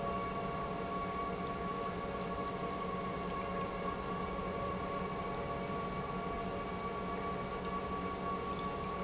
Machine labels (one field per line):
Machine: pump